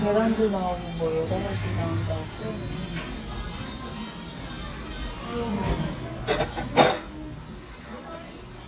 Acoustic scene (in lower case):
restaurant